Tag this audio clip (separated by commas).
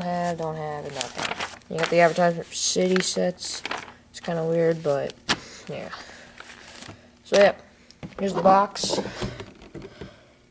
Speech